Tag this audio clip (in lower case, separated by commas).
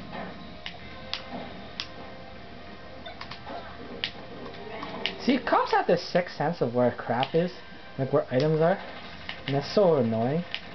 speech